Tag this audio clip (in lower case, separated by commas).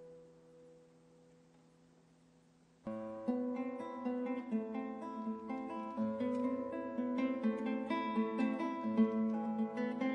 acoustic guitar, musical instrument, music, guitar